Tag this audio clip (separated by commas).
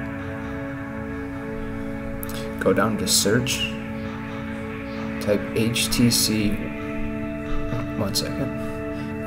Speech, Music